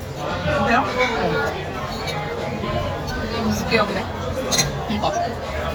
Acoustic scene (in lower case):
restaurant